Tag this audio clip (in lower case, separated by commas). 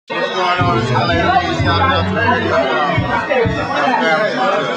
speech